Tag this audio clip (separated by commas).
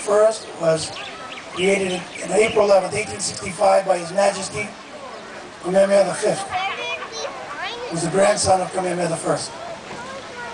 man speaking, Speech